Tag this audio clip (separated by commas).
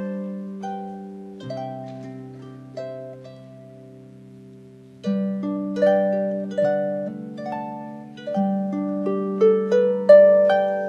Harp, playing harp, Pizzicato